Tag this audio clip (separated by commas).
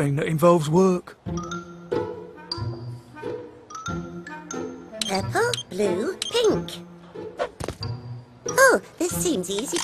Music, Speech